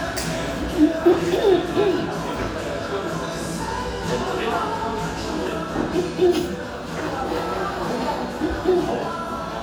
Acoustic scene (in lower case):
cafe